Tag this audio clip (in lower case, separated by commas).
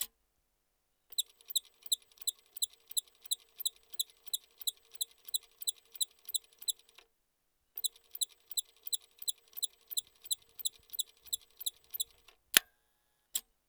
mechanisms